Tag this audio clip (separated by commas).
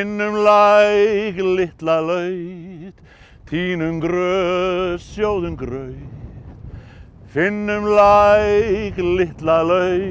Male singing